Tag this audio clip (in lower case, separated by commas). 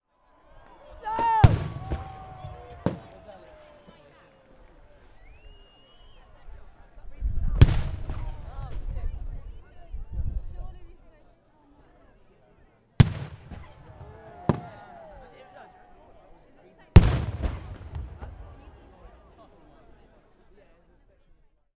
fireworks, explosion